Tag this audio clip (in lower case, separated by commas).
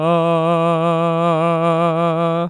human voice, singing